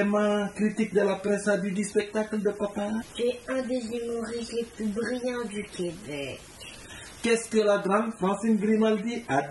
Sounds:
speech

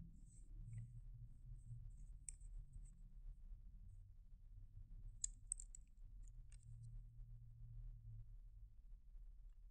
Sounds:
inside a small room, silence

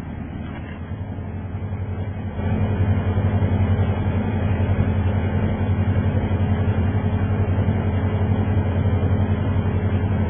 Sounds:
vehicle

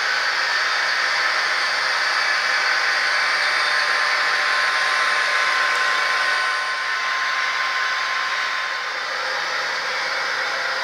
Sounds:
train

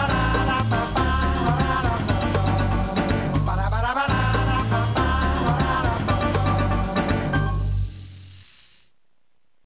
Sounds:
male singing, music

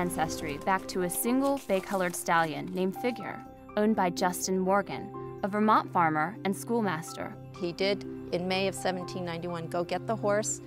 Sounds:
horse, animal, clip-clop, speech, music

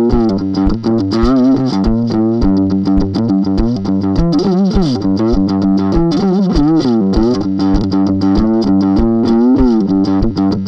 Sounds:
electric guitar, music, strum, plucked string instrument, acoustic guitar, musical instrument, guitar

